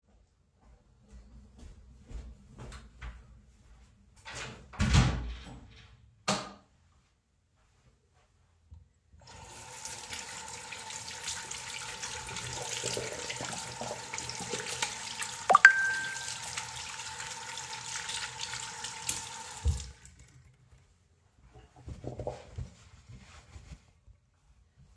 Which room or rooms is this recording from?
bathroom